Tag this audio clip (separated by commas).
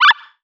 Animal